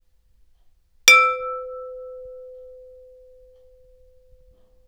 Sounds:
Glass, dishes, pots and pans, home sounds

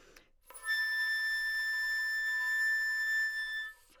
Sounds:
Wind instrument, Musical instrument, Music

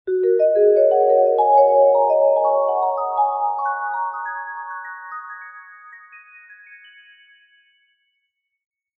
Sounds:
Percussion, Music, Mallet percussion, Musical instrument

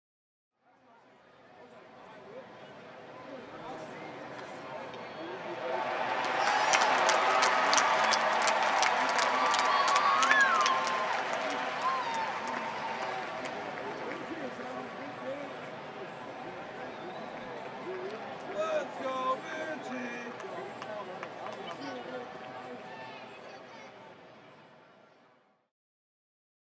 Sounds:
Human group actions, Applause, Cheering

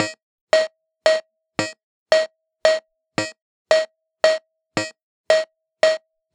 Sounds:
Music, Keyboard (musical), Musical instrument

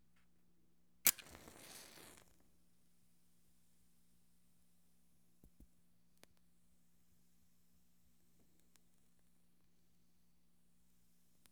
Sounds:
Fire

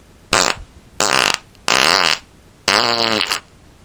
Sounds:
Fart

